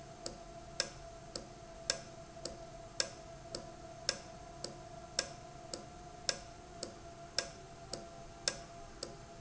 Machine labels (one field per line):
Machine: valve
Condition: normal